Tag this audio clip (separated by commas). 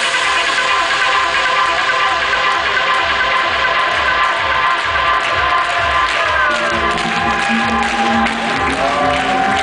Music